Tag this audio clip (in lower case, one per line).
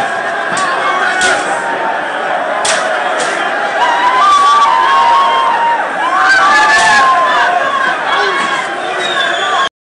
speech